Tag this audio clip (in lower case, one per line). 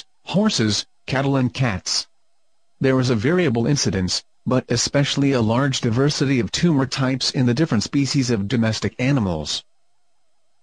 speech